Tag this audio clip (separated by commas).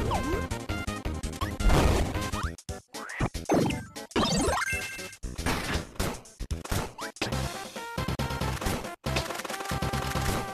Music